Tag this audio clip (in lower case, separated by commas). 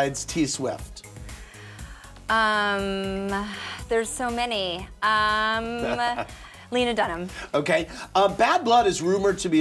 speech